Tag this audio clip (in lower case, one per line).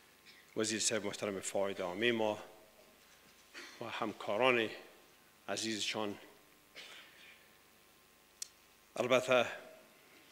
speech
monologue
male speech